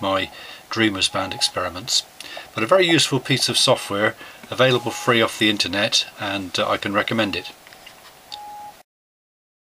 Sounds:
Speech

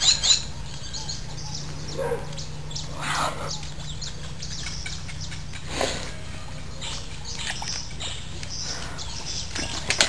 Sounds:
outside, rural or natural, Animal

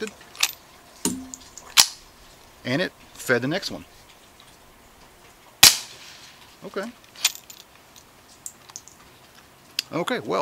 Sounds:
cap gun shooting

